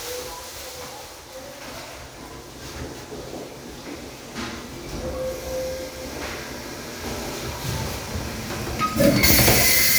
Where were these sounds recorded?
in a restroom